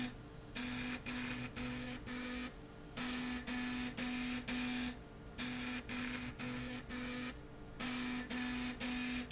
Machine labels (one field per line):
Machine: slide rail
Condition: abnormal